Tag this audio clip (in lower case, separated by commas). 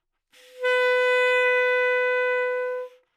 wind instrument, musical instrument, music